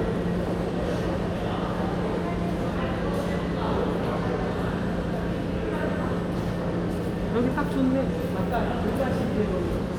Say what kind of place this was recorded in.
subway station